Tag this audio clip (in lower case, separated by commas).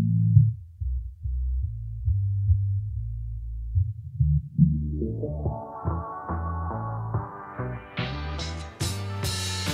sampler, music